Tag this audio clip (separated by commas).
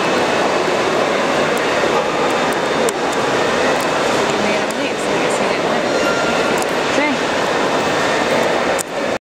Speech